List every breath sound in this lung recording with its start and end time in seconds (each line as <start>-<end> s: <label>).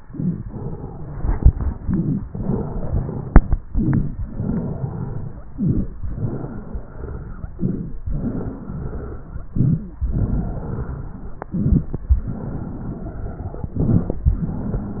0.00-0.43 s: inhalation
0.00-0.43 s: crackles
0.44-1.81 s: exhalation
0.44-1.81 s: wheeze
1.80-2.23 s: inhalation
1.80-2.23 s: crackles
2.26-3.53 s: exhalation
2.26-3.53 s: wheeze
3.72-4.15 s: inhalation
3.72-4.15 s: crackles
4.25-5.44 s: exhalation
4.25-5.44 s: wheeze
5.54-6.00 s: inhalation
5.54-6.00 s: crackles
6.09-7.43 s: exhalation
6.09-7.43 s: wheeze
7.56-8.02 s: inhalation
7.56-8.02 s: crackles
8.15-9.49 s: exhalation
8.15-9.49 s: wheeze
9.55-10.01 s: inhalation
9.55-10.01 s: crackles
10.10-11.44 s: exhalation
10.10-11.44 s: wheeze
11.55-12.01 s: inhalation
11.55-12.01 s: crackles
12.19-13.70 s: exhalation
12.19-13.70 s: wheeze
13.79-14.25 s: inhalation
13.79-14.25 s: crackles
14.34-15.00 s: exhalation
14.34-15.00 s: wheeze